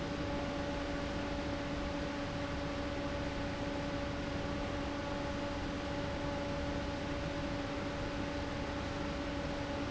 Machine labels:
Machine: fan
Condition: abnormal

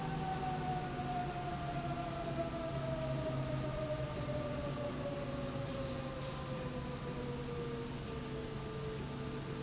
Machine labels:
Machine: slide rail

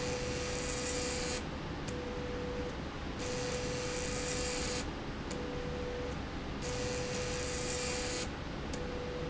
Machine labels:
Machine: slide rail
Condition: abnormal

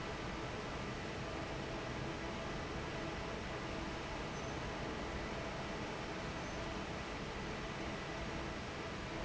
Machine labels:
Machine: fan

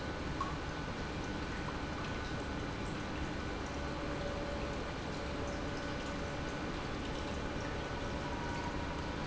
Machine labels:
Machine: pump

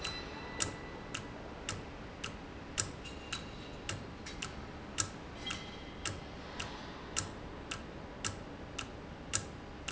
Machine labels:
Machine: valve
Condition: normal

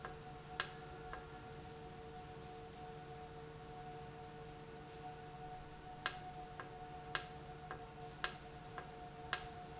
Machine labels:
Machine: valve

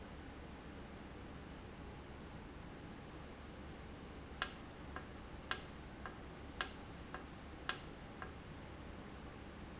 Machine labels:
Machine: valve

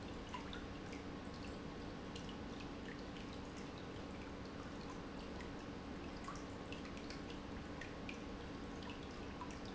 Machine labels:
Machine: pump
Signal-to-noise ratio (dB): 6 dB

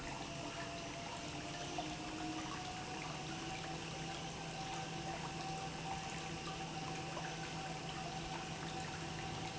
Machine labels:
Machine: pump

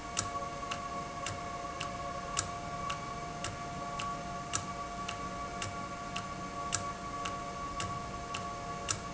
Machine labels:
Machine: valve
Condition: normal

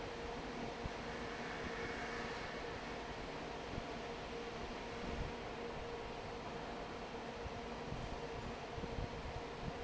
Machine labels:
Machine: fan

